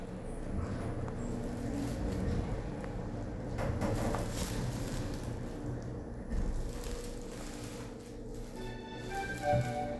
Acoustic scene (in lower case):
elevator